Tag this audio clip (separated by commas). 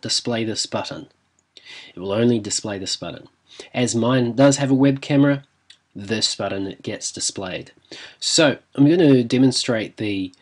Speech